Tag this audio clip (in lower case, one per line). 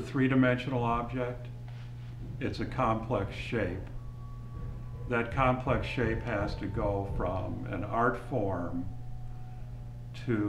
speech